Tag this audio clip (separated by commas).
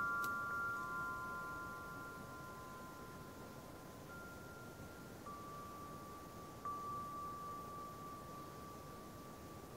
wind chime